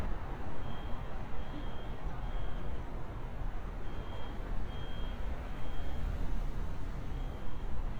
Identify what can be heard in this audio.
unidentified alert signal